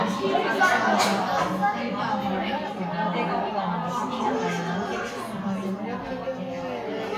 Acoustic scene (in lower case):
crowded indoor space